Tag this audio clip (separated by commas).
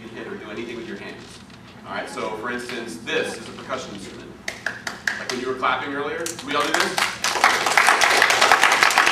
Speech